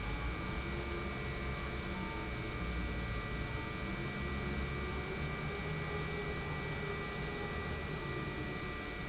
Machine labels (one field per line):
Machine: pump